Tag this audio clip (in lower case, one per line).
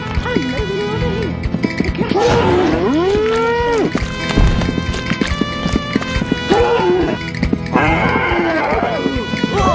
music
speech
run